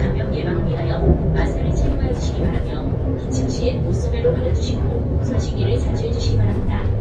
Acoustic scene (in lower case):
bus